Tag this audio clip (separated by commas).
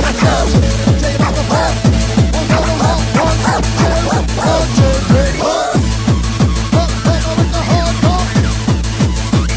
Techno, Electronic music, Music